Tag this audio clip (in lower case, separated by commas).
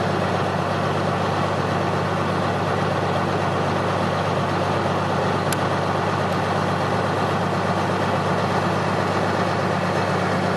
idling, vehicle, engine